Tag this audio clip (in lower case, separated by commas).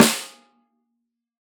percussion, music, musical instrument, snare drum, drum